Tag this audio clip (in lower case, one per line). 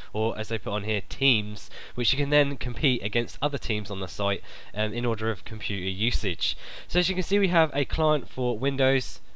speech